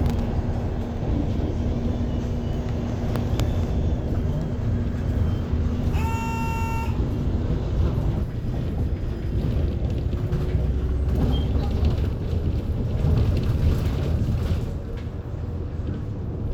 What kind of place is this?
bus